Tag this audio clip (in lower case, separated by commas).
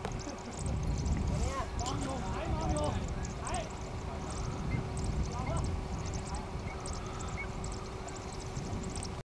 bird, coo, speech, animal